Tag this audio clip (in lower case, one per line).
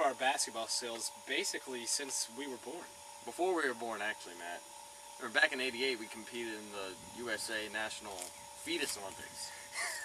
speech